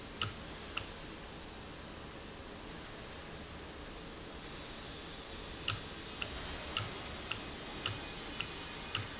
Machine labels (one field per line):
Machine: valve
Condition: normal